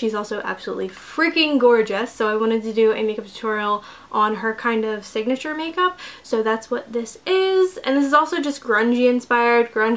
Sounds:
speech

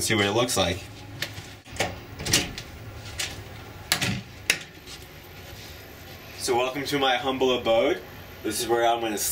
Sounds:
speech

